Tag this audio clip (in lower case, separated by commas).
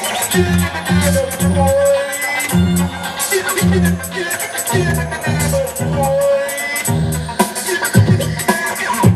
music, electronic music, drum kit, scratching (performance technique)